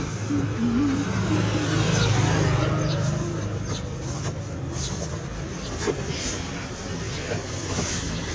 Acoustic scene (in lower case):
residential area